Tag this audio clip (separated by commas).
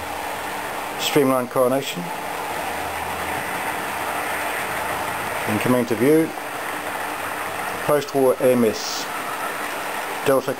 Speech